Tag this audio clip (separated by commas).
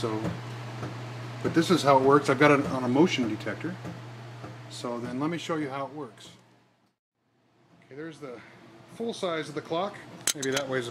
Speech, Tick-tock